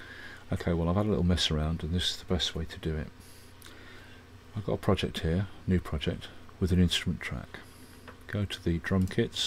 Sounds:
speech

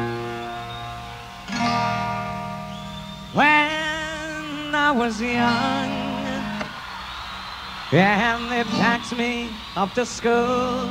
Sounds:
music

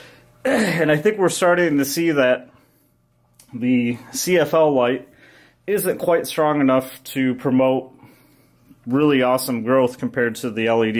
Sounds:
speech

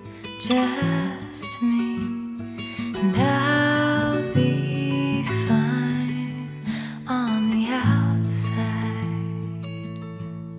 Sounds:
music

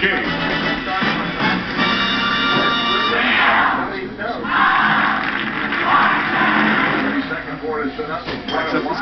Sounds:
speech
music

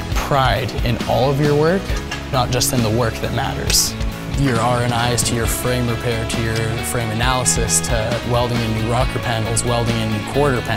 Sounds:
music
speech

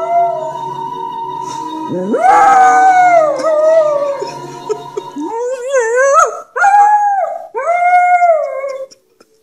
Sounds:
dog howling

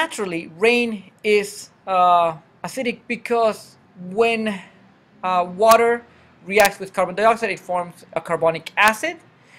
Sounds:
speech

